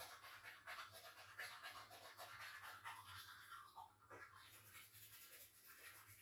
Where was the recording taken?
in a restroom